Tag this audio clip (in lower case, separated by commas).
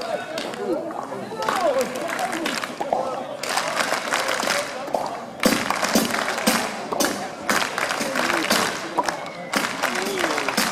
speech, music